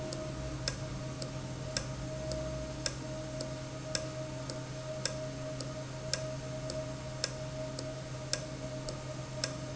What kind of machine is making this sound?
valve